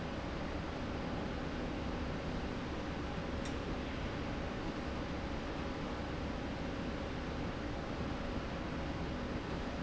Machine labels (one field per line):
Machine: slide rail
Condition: normal